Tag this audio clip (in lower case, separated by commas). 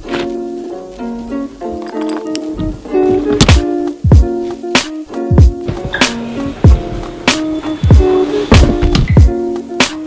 music